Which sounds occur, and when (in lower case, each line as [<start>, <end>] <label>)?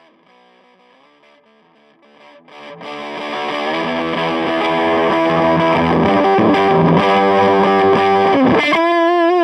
[0.00, 9.43] distortion
[0.00, 9.43] music